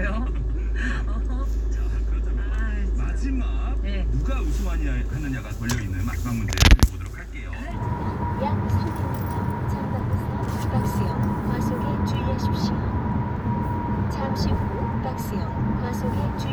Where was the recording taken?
in a car